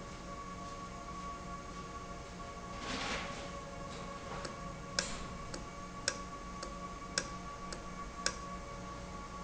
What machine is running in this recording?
valve